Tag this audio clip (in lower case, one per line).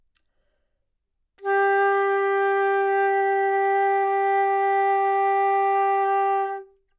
woodwind instrument
musical instrument
music